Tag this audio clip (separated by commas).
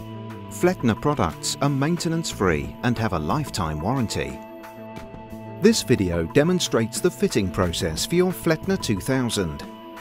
Music, Speech